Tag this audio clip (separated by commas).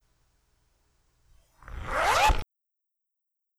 home sounds, Zipper (clothing)